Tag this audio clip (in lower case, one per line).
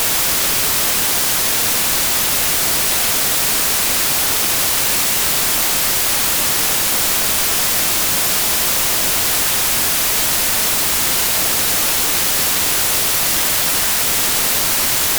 water